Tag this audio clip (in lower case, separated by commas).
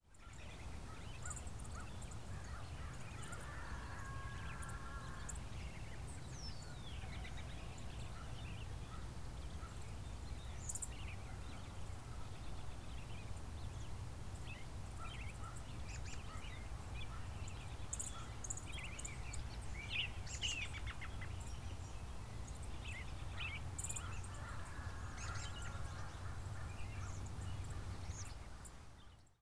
bird vocalization, bird, chirp, wild animals, animal